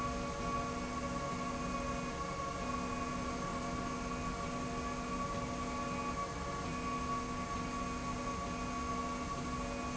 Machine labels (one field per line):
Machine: slide rail